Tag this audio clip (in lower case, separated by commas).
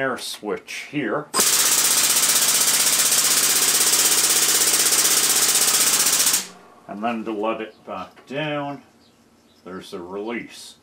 tools, inside a small room, speech